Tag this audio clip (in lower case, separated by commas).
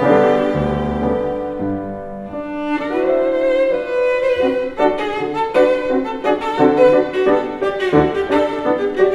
music, fiddle, musical instrument